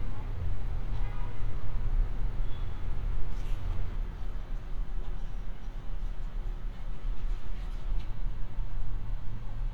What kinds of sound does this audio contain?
car horn